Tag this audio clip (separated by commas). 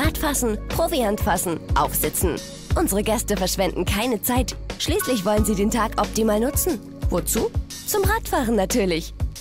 Speech, Music